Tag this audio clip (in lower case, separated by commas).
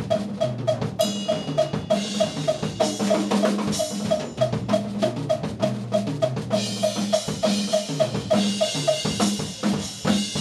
drum, musical instrument, drum kit, bass drum, music